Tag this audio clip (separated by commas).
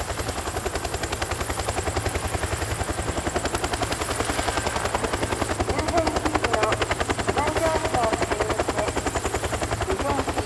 Speech